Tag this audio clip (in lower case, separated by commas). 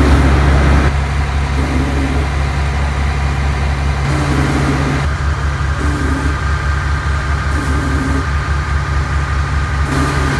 vehicle